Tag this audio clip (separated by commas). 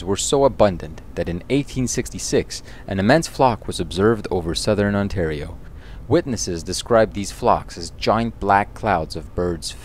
Speech